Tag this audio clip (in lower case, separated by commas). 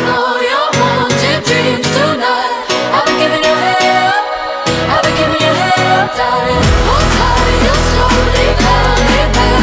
jingle (music)